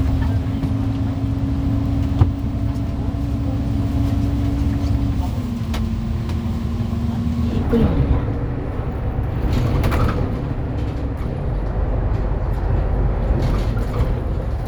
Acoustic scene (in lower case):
bus